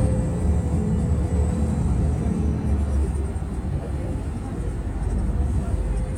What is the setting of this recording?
bus